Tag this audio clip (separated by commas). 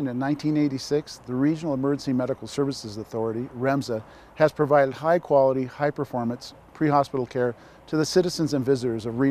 Speech